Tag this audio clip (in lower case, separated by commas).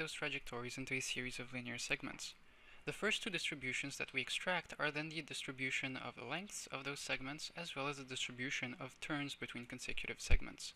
speech